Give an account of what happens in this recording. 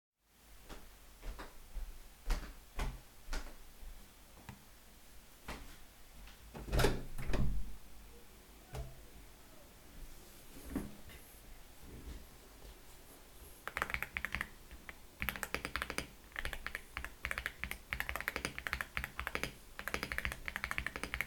I walked to the table, opened the window, sat at the table and started typing on the keyboard.